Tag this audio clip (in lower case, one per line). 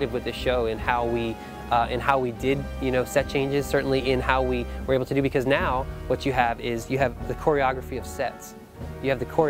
music
speech